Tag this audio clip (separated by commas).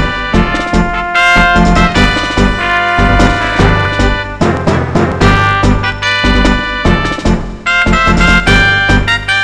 Music